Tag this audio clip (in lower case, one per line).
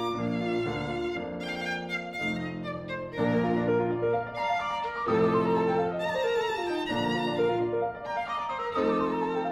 violin
music
musical instrument